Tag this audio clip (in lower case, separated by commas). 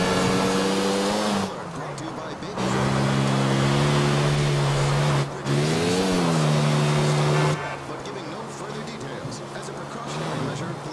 speech